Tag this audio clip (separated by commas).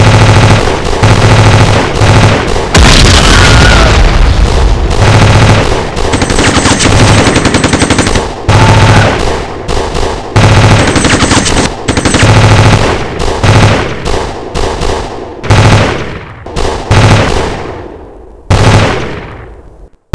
Explosion, Gunshot